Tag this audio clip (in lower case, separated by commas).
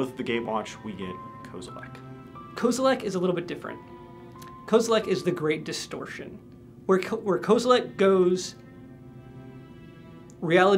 speech, music